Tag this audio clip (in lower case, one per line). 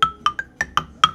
musical instrument
percussion
marimba
music
mallet percussion